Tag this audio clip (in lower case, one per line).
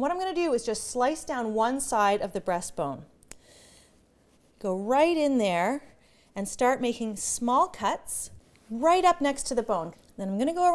speech